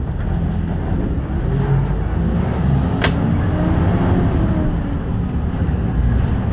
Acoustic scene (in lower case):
bus